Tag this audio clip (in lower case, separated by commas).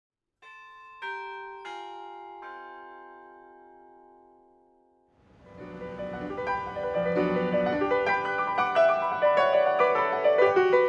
musical instrument, keyboard (musical), music, piano, inside a small room, classical music